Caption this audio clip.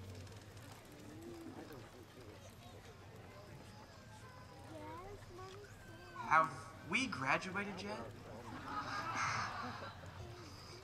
Background noise, a child and other people speaking indistinctly, a man speaks followed by general laughter